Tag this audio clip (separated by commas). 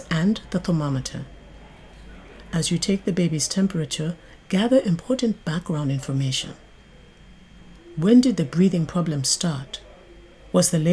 Speech